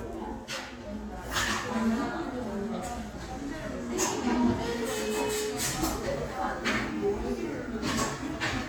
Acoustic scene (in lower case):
crowded indoor space